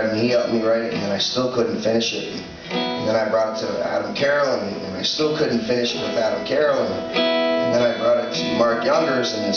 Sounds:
speech, music

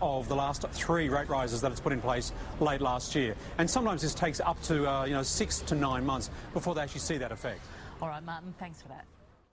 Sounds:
speech, television

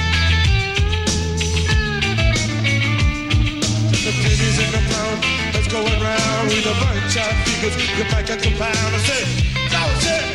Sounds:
singing

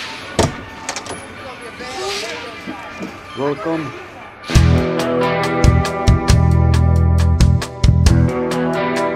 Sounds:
speech, music

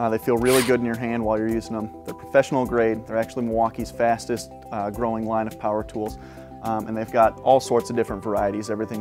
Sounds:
music, speech

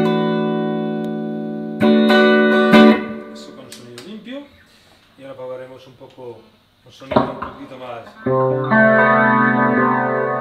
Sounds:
electric guitar, bass guitar, speech, guitar, plucked string instrument, music, musical instrument

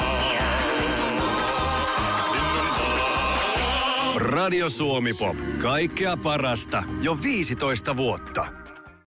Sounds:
speech, music

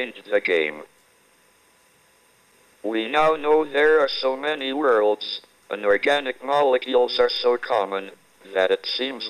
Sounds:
speech, radio

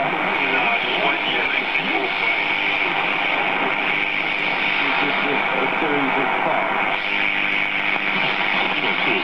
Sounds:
radio, speech

